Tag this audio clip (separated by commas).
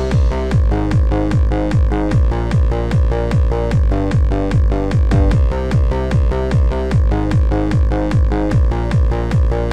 Electronic music, Techno, Music